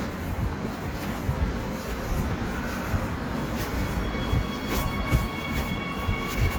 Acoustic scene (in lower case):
subway station